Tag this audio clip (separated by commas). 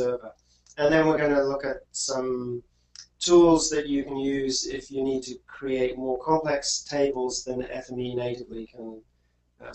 Speech